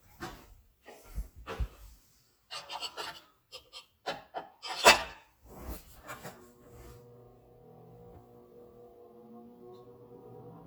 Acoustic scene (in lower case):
kitchen